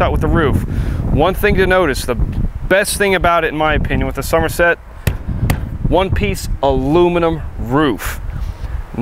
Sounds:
speech

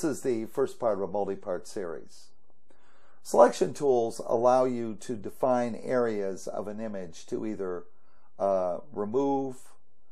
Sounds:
speech

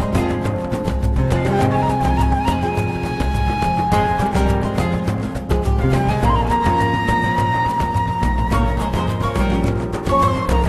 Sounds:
exciting music, music

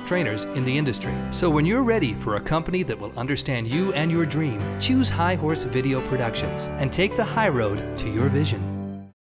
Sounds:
music, speech

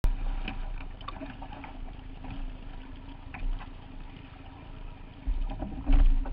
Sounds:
water

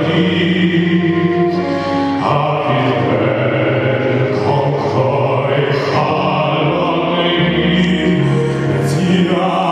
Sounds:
male singing, music

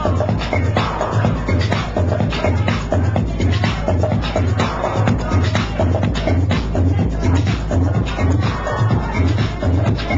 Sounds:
music, techno

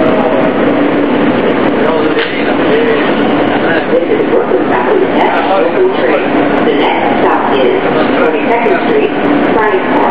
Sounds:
inside a public space, speech

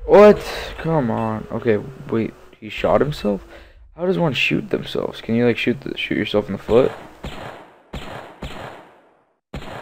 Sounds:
speech

